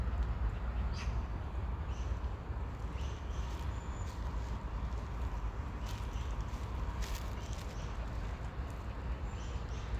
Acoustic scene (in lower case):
park